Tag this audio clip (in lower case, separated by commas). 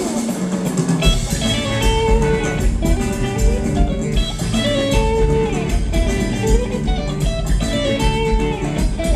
background music, music